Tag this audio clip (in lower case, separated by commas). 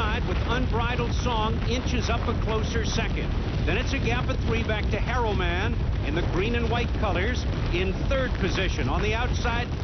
speech